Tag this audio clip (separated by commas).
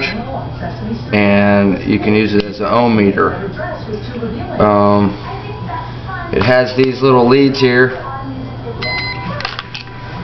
Speech, inside a large room or hall